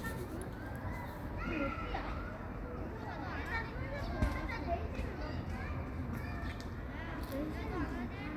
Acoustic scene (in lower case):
park